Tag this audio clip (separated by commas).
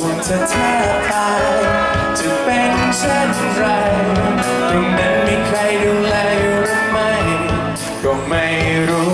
Male singing, Music